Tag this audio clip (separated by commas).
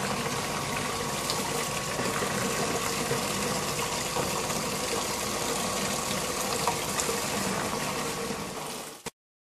pumping water